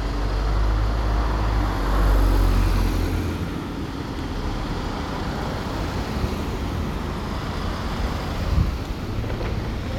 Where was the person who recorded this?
in a residential area